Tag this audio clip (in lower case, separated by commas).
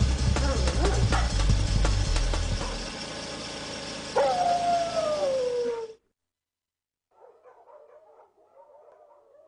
whimper (dog), pets, howl, yip, bow-wow, dog, animal, music